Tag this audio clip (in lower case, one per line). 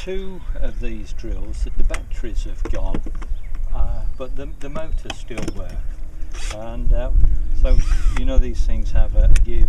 speech